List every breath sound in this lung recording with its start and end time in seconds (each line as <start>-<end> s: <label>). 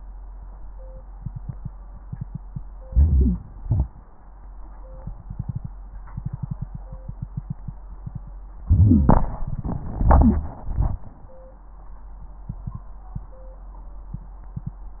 2.83-3.64 s: wheeze
2.85-3.62 s: inhalation
3.67-4.02 s: exhalation
8.59-9.27 s: wheeze
8.66-9.27 s: inhalation
9.39-10.56 s: crackles
9.43-10.60 s: exhalation
10.63-11.38 s: inhalation